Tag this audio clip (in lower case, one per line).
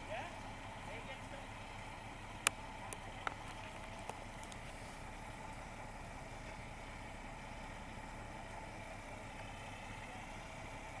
speech